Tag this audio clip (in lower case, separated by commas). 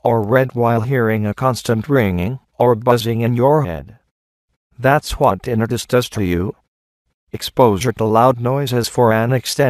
speech